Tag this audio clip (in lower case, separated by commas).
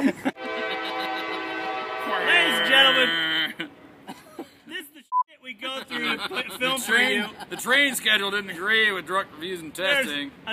speech, train horn